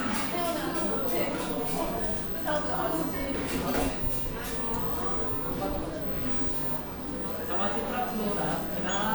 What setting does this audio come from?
cafe